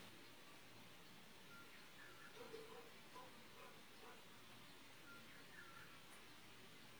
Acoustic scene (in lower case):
park